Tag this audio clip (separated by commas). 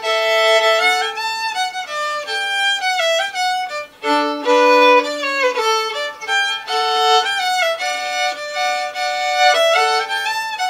Violin, Music, Musical instrument